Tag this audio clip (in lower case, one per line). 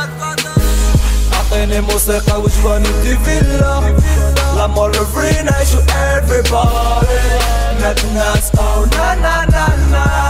music